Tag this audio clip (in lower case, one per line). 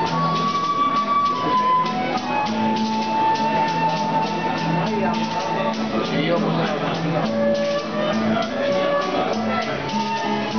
flute
wind instrument